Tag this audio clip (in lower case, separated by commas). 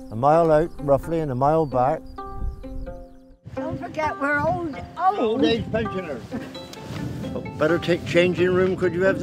speech, music